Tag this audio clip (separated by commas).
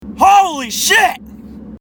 Human voice, Speech